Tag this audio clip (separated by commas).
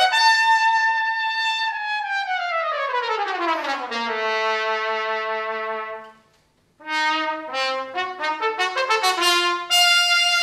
Musical instrument, Brass instrument, Trumpet, Music, playing trumpet